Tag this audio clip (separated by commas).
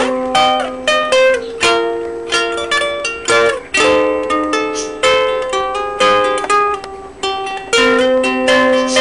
Musical instrument, Music, Guitar, Plucked string instrument